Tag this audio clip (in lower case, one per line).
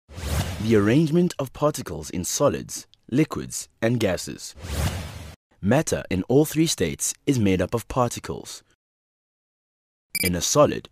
speech